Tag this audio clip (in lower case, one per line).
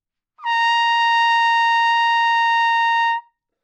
musical instrument
brass instrument
trumpet
music